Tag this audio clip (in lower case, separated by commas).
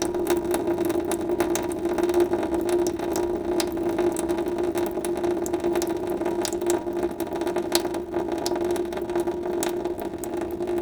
liquid, faucet, drip, sink (filling or washing), domestic sounds